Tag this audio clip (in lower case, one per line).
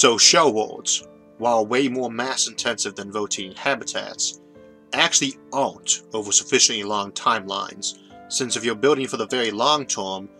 narration